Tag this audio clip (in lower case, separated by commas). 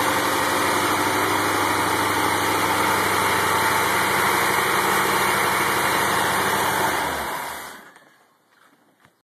idling, engine, medium engine (mid frequency)